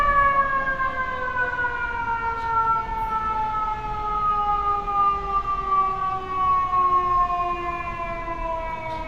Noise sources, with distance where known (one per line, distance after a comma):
siren, near